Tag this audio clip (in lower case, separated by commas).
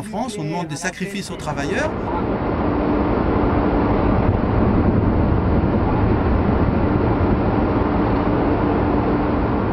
missile launch